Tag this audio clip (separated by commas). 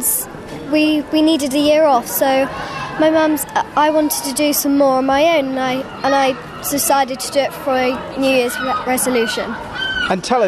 Speech